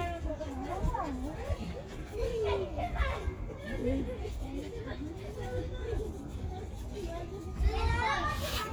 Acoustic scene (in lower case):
residential area